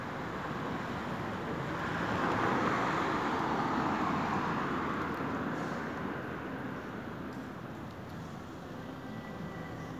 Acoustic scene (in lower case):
street